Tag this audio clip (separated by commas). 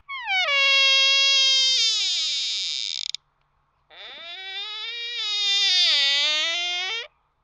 Door, Squeak, Domestic sounds